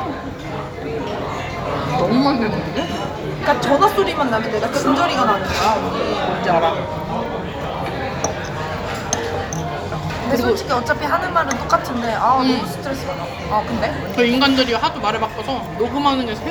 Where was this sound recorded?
in a crowded indoor space